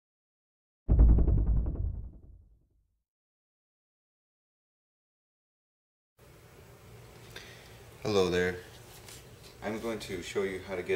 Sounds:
speech

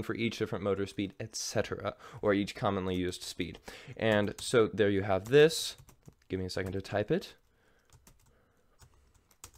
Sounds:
speech

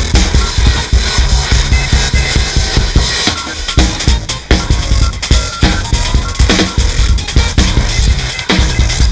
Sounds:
drum kit
cymbal
musical instrument
drum
music
playing drum kit

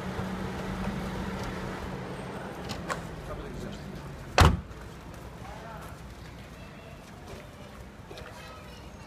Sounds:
speech

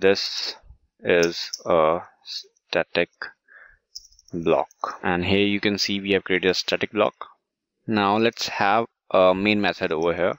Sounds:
speech

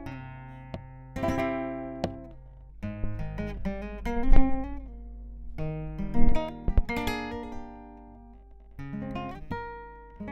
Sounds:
strum
plucked string instrument
music
guitar
musical instrument
acoustic guitar

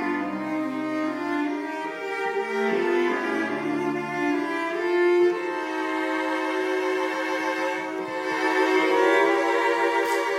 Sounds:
violin
classical music
bowed string instrument
orchestra
music
musical instrument
cello

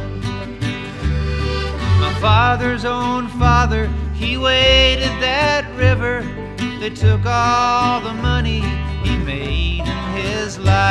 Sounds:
music

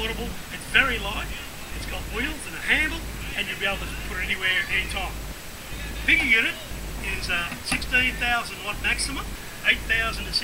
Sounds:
speech

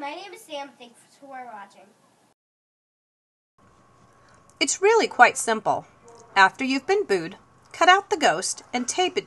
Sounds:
speech

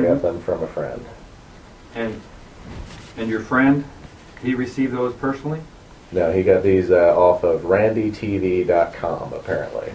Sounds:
speech

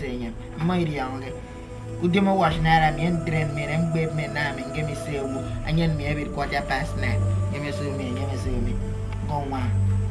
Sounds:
outside, urban or man-made
speech
music

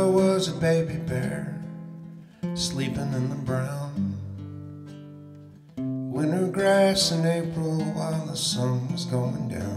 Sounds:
music

